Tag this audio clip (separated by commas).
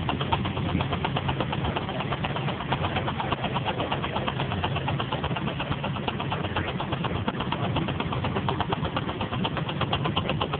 Speech